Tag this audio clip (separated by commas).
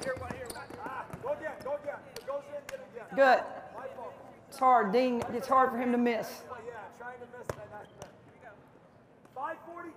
Basketball bounce